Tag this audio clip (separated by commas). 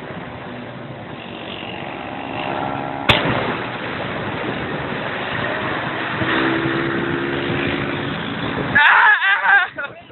Vehicle